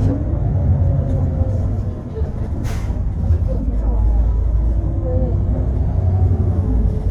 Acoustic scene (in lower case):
bus